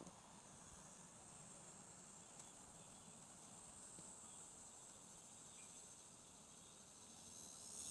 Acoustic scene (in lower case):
park